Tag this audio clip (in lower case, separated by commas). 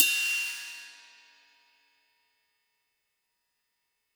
cymbal, musical instrument, crash cymbal, music, percussion, hi-hat